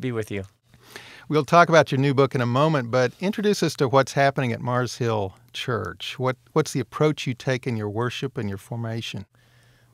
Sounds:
Speech

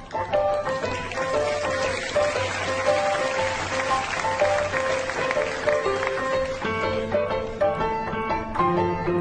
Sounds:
Music

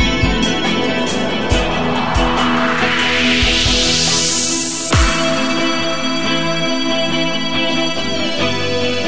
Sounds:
Music

